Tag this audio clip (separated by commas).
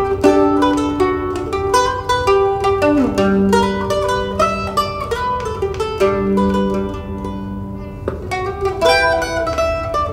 Mandolin, Music